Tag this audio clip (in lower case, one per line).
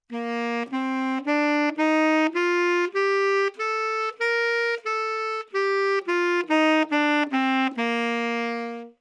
music
musical instrument
wind instrument